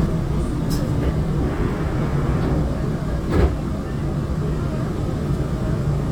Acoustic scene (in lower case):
subway train